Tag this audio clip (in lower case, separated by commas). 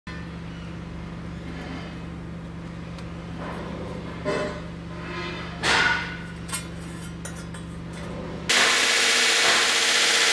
forging swords